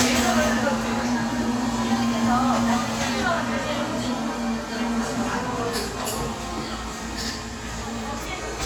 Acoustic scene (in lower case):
cafe